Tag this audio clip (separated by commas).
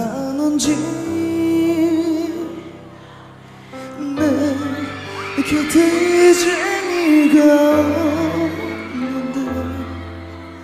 Music